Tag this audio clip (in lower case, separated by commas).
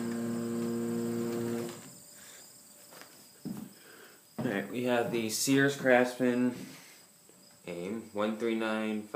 speech